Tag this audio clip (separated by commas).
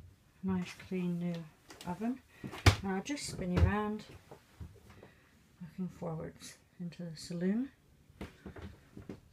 Speech